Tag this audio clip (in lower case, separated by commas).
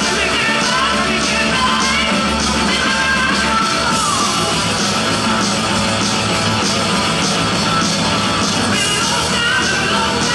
music, rock and roll, rock music